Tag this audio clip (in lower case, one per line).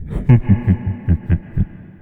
human voice
laughter